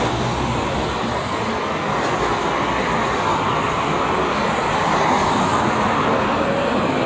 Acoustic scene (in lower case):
street